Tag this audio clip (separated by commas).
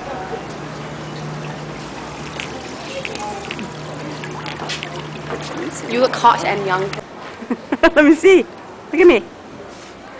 Speech, Water